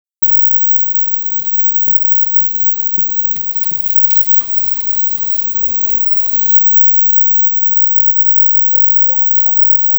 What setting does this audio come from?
kitchen